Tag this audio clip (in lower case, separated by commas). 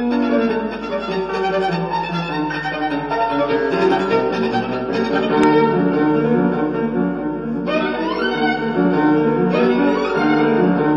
violin, music, musical instrument